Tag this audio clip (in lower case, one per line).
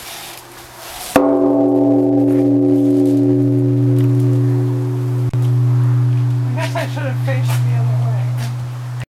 speech